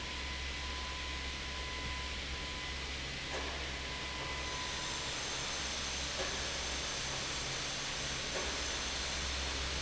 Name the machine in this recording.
fan